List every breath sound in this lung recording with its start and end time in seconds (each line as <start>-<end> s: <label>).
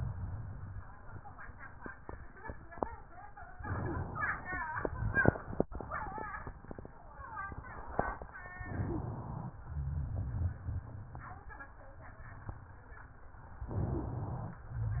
3.60-4.60 s: inhalation
8.60-9.56 s: inhalation
9.56-11.80 s: exhalation
13.68-14.61 s: inhalation